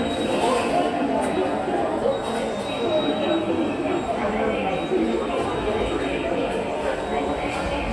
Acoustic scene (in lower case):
subway station